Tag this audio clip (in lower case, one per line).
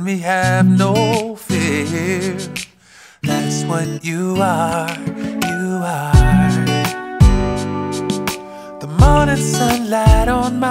music
tender music